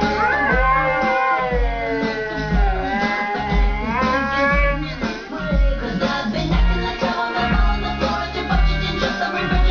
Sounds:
Male singing, Music, Whimper (dog), Domestic animals, Female singing, Animal, Dog

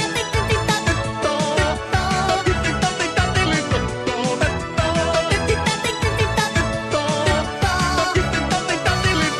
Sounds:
Music

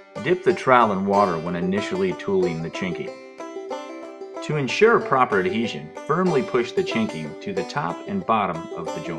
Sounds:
Speech, Music

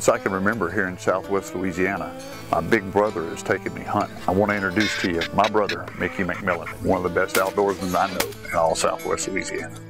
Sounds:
Speech, Music, Duck, Quack

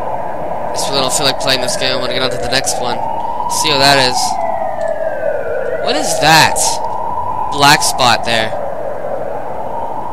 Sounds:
Speech

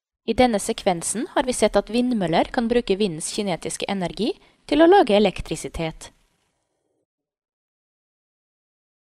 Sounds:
Speech

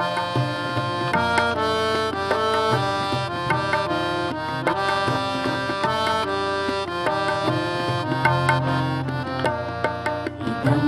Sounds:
Music, Traditional music

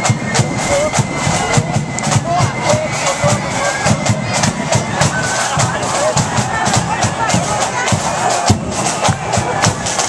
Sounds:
Speech, Music

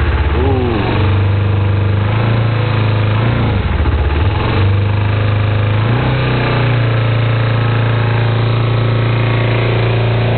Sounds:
revving, Engine, Vehicle, Accelerating

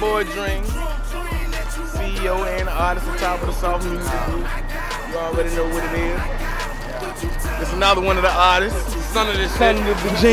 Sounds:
Speech, Music

